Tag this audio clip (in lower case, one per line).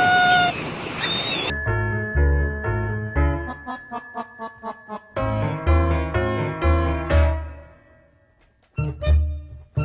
music